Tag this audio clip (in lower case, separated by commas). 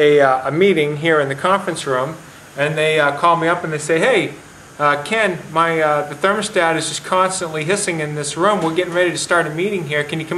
speech